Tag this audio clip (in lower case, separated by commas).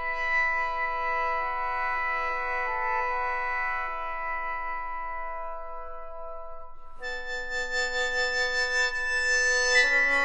musical instrument, music